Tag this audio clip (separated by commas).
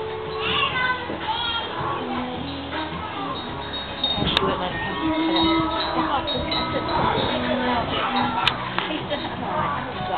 Music, Speech